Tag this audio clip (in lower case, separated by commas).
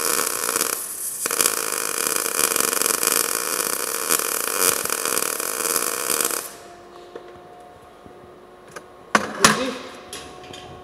speech